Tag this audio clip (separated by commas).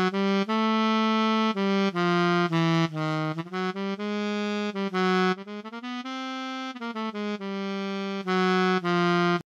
Music